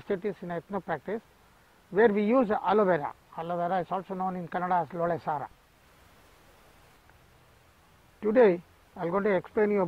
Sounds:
speech

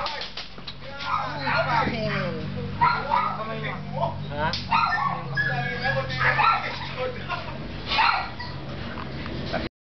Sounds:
yip
speech

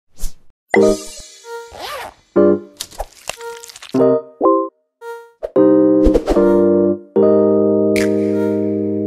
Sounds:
music

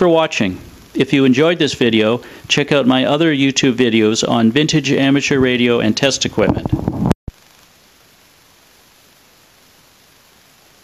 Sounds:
speech

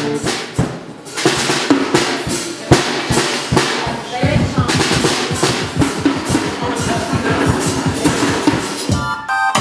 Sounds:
percussion
music

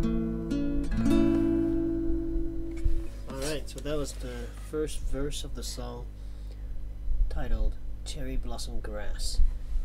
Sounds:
speech
strum
music
plucked string instrument
guitar
musical instrument

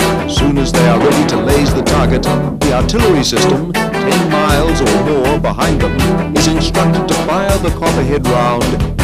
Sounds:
speech
music

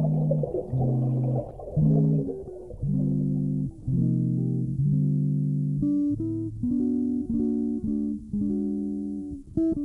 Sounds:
music

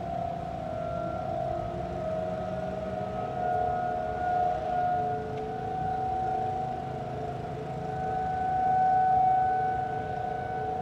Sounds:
siren

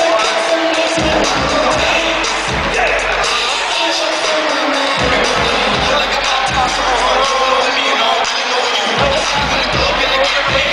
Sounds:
cheering
speech
music
hip hop music

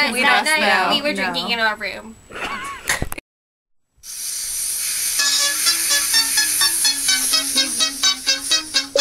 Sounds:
inside a small room
speech
music

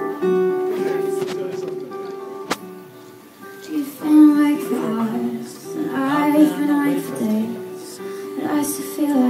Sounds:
music
speech

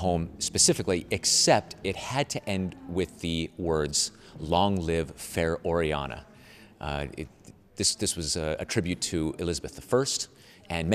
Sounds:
speech

